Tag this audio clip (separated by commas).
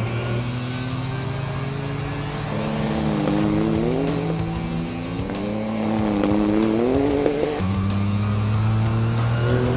Vehicle, Race car, Car, Music